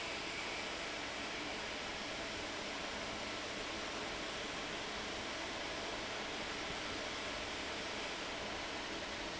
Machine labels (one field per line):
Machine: fan